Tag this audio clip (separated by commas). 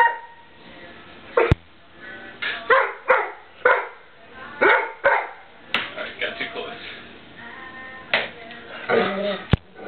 Speech, Music, Dog, Animal, Bow-wow, Domestic animals, Yip